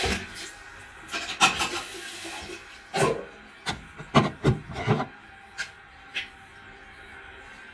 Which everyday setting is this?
restroom